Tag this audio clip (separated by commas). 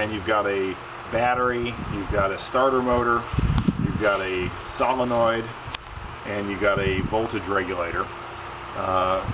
Speech, Engine